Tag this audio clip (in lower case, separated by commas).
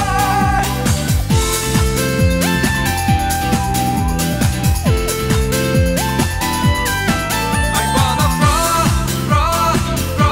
music, dance music